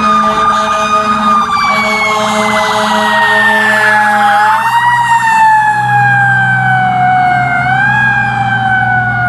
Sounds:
fire truck siren

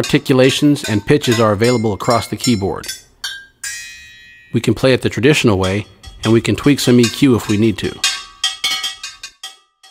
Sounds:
speech, percussion, music

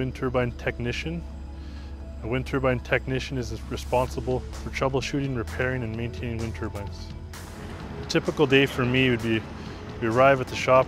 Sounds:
music, speech

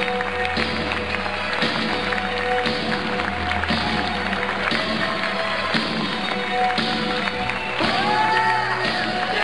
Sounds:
music

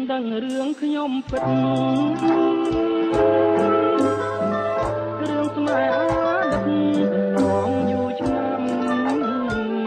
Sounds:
traditional music, music

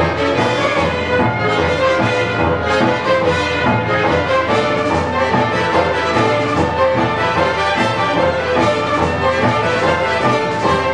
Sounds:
music

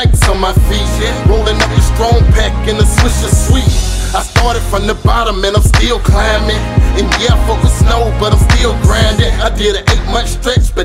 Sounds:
music

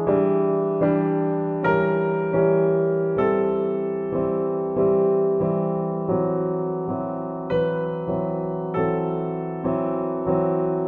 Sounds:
music

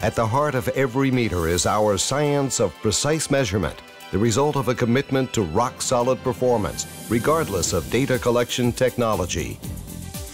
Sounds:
speech, music

